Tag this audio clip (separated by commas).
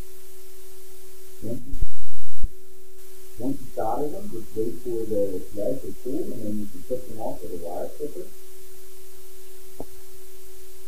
Speech